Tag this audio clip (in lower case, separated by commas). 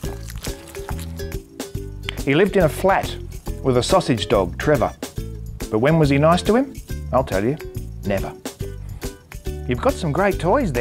music, speech